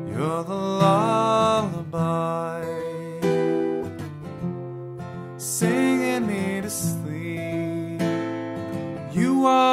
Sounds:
music

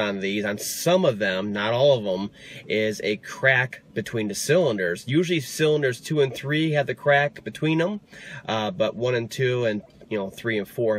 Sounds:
speech

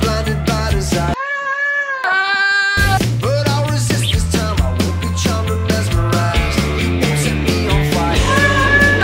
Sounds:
music
goat
animal
rock music
musical instrument
guitar

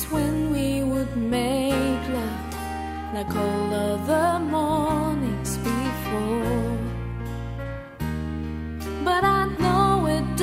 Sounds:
music
female singing

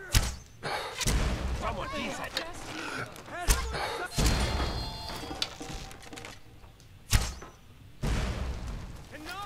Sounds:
speech

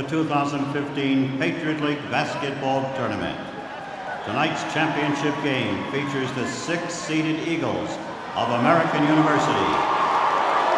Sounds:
speech

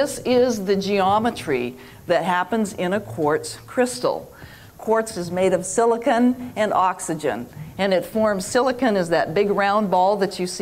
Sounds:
speech

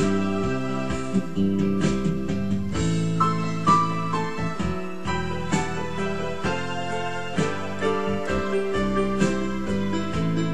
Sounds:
piano
electric piano
keyboard (musical)
musical instrument
music

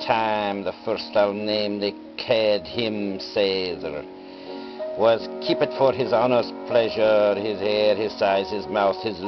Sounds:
music
speech

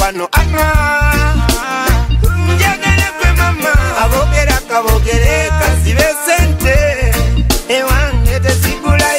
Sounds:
music

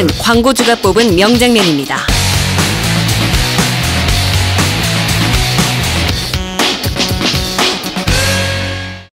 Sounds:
music
speech

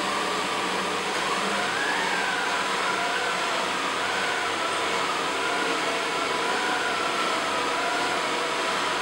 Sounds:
vacuum cleaner

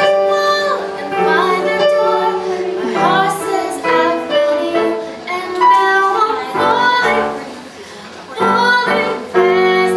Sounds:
singing
music
female singing

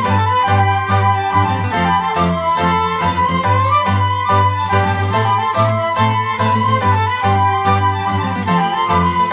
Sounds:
music

